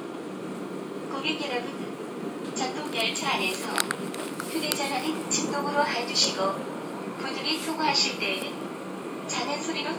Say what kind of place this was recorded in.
subway train